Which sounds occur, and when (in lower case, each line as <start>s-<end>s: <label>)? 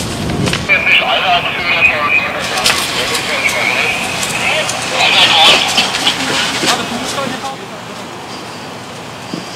0.0s-9.5s: background noise
0.0s-9.5s: engine
0.0s-9.5s: fire
0.0s-9.5s: water
0.3s-0.6s: generic impact sounds
0.6s-2.7s: male speech
0.7s-2.8s: radio
2.9s-4.1s: male speech
3.0s-4.1s: radio
3.1s-3.2s: footsteps
3.4s-3.6s: footsteps
4.2s-4.3s: footsteps
4.3s-4.7s: male speech
4.3s-4.7s: radio
4.6s-4.7s: footsteps
4.9s-5.8s: male speech
4.9s-5.1s: footsteps
4.9s-5.8s: radio
5.4s-6.8s: footsteps
6.1s-7.7s: male speech